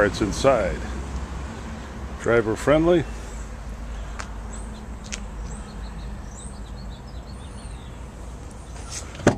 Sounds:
speech

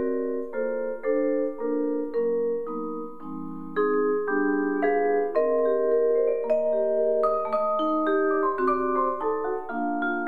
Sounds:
playing vibraphone

